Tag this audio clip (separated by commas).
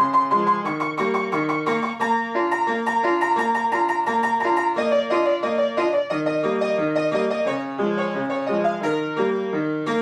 Piano, Keyboard (musical)